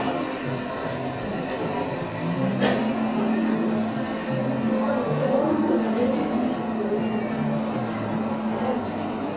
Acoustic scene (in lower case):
cafe